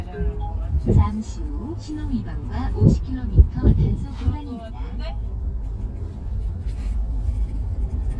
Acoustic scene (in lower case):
car